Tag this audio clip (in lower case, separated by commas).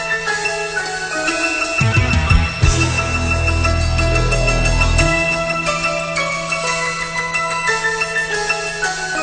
music